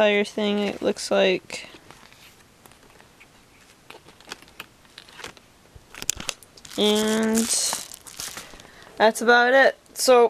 Someone is speaking while paper is rustling